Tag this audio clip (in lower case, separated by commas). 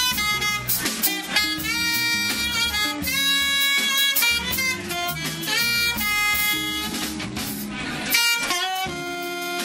brass instrument, saxophone, playing saxophone